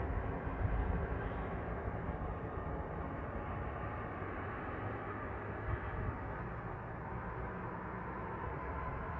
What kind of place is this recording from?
street